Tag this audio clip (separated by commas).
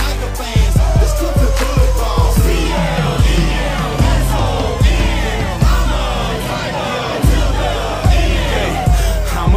Music